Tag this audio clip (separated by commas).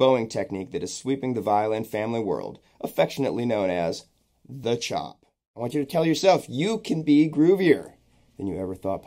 Speech